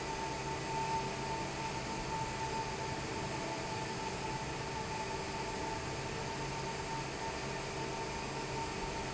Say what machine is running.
fan